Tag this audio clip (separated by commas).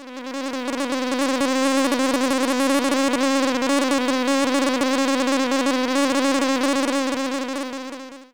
Insect, Animal, Wild animals